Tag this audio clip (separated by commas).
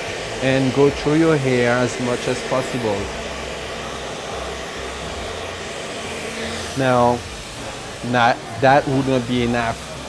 hair dryer drying